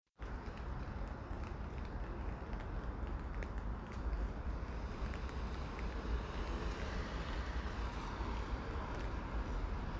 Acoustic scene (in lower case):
residential area